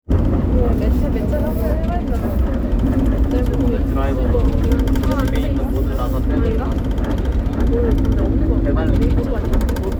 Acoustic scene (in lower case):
bus